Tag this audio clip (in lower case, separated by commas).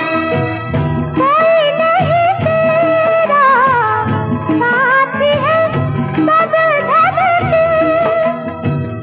song, music of bollywood